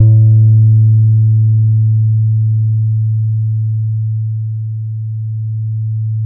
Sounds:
musical instrument, guitar, bass guitar, plucked string instrument, music

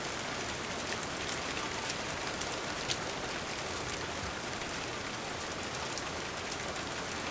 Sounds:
rain, water

